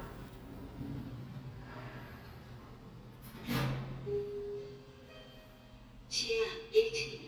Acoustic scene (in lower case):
elevator